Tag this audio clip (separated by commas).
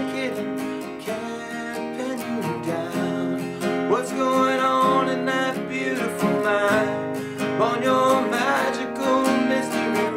Music, Strum